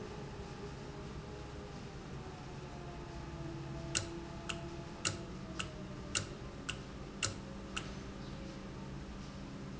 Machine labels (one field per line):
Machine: valve